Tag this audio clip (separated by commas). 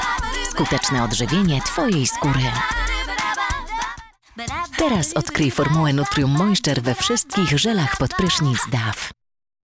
Speech, Music